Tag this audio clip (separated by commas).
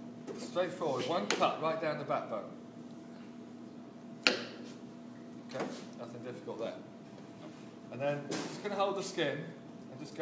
Speech